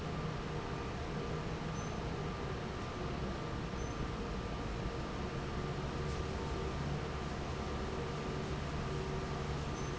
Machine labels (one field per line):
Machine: fan